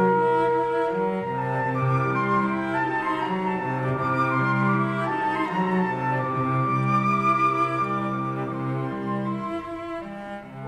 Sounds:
orchestra

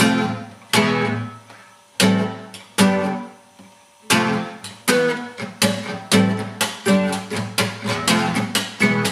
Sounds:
guitar, musical instrument, music, plucked string instrument, acoustic guitar

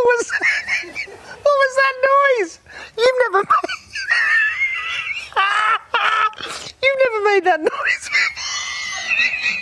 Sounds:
people giggling

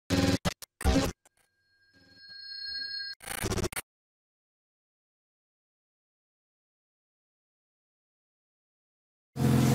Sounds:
car, outside, rural or natural, vehicle, silence

